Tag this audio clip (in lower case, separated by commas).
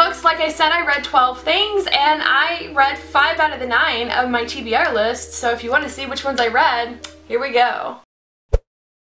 music, speech, inside a small room